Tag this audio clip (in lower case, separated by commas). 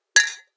glass, clink